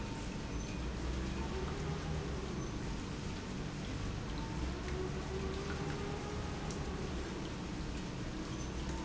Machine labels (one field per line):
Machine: pump